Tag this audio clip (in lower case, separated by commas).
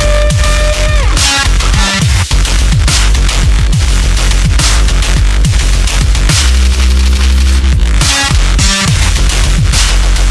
dubstep, music